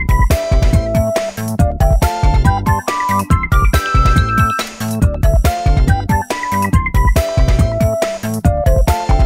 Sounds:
music, electronic music

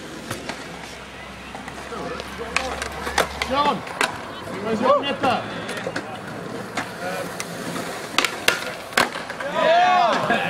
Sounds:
speech, skateboarding, skateboard

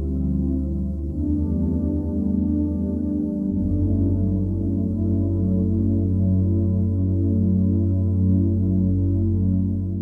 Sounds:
ambient music, music

